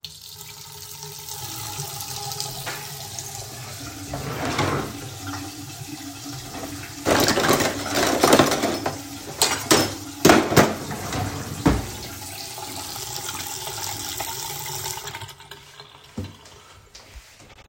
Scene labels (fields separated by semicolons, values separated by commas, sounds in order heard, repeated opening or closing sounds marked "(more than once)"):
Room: kitchen; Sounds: running water, wardrobe or drawer (more than once), cutlery and dishes, footsteps